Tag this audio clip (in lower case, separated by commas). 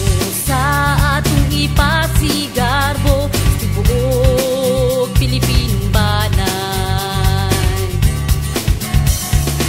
jingle (music), music